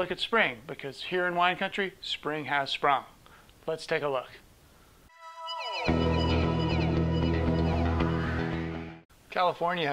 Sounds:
Speech

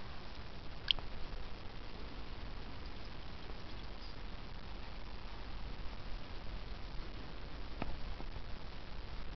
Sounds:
Radio

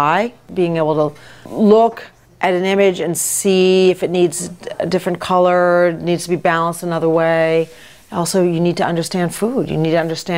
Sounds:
Speech

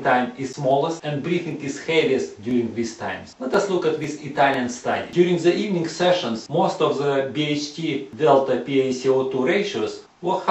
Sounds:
Speech

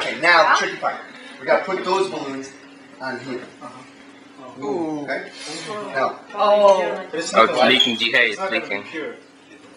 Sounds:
Speech

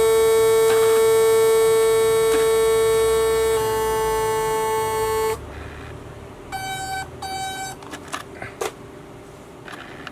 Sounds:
electric shaver

